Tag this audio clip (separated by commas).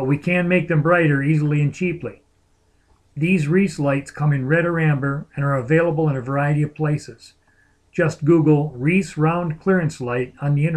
Speech